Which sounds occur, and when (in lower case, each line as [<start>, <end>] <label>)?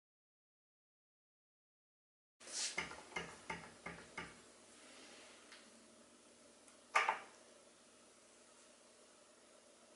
[2.37, 2.77] human sounds
[2.38, 9.95] background noise
[6.92, 7.22] generic impact sounds
[7.24, 7.43] tick